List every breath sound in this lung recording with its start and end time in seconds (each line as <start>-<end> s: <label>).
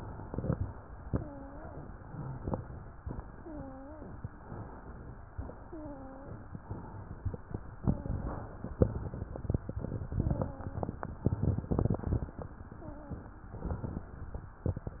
0.00-0.76 s: inhalation
1.02-1.78 s: wheeze
2.07-2.94 s: inhalation
3.36-4.12 s: wheeze
4.38-5.26 s: inhalation
5.67-6.43 s: wheeze
6.62-7.50 s: inhalation
7.76-8.52 s: wheeze
8.86-9.79 s: inhalation
10.13-10.89 s: wheeze
12.75-13.40 s: wheeze
13.53-14.18 s: inhalation